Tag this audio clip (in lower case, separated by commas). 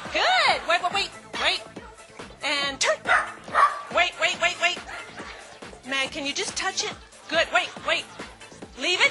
animal, pets, speech, dog, bow-wow